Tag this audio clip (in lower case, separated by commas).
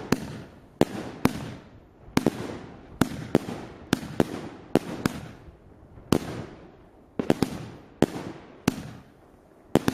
fireworks banging, fireworks